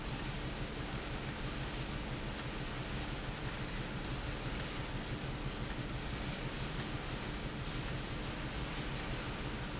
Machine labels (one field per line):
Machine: valve